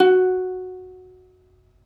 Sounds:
musical instrument, plucked string instrument, music

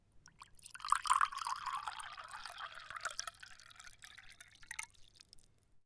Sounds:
liquid, water, fill (with liquid)

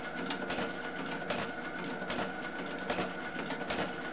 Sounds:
mechanisms

